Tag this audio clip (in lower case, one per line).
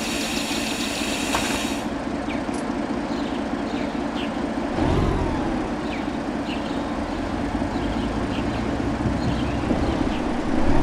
vehicle
car
engine